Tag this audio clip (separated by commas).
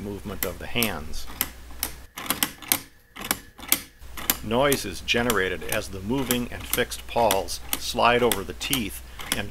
Speech, Tick, Tick-tock